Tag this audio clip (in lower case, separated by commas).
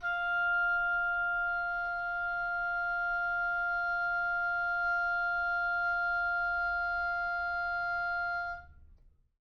musical instrument, woodwind instrument, music